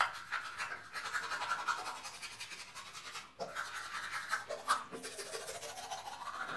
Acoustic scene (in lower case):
restroom